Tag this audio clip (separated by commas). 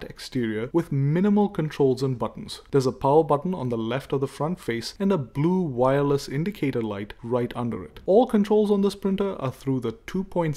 Speech